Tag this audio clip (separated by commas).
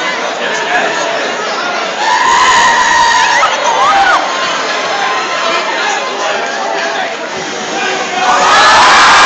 Cheering, Crowd